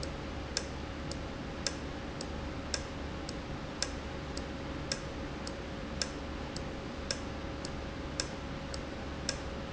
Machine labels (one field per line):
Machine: valve